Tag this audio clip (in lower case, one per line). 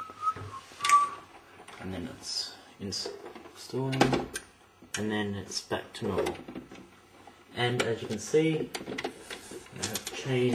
speech